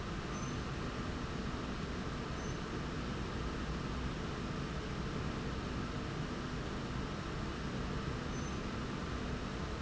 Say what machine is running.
slide rail